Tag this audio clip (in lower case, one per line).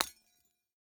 shatter
glass